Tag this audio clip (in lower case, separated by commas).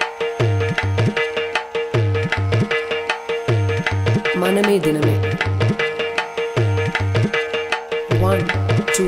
percussion, tabla